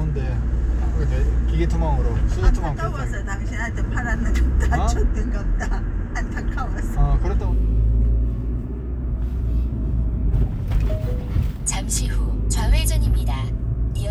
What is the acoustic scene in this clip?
car